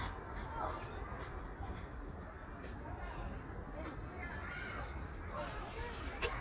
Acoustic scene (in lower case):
park